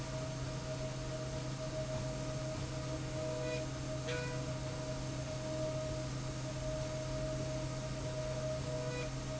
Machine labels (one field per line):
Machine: slide rail